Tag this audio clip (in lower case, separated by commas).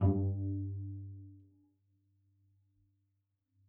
musical instrument, bowed string instrument, music